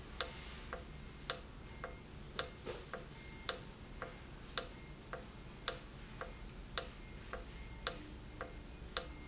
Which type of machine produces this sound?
valve